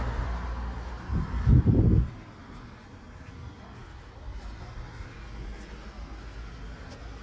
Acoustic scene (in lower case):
residential area